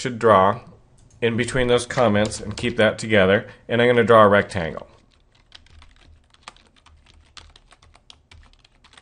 A man speaking and as well as typing something